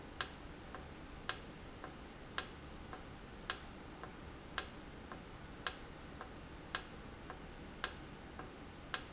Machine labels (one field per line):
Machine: valve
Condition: normal